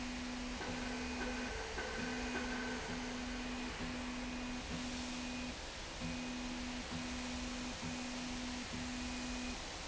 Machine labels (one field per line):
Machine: slide rail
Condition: normal